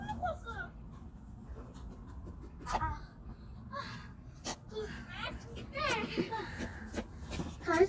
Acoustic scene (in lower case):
park